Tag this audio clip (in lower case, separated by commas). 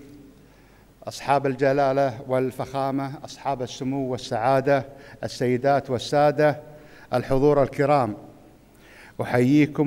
man speaking, speech